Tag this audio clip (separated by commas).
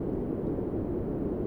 Wind